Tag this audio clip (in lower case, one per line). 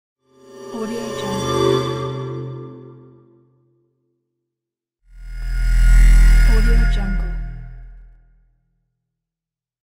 scary music
music
speech